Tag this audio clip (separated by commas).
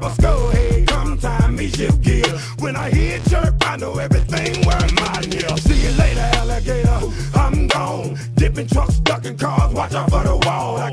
Music